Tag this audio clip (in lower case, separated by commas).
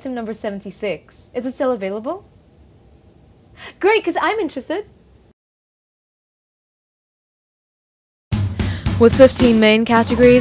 music, speech